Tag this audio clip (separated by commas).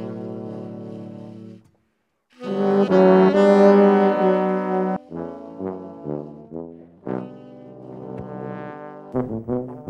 Music, Saxophone, Brass instrument, Musical instrument, Trombone